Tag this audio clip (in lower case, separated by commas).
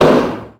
explosion